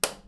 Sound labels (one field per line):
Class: switch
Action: being turned on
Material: plastic